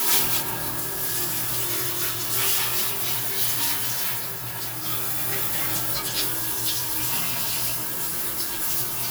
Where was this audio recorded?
in a restroom